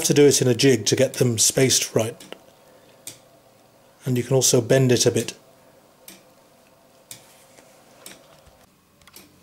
A man speaks over a faint clicking sound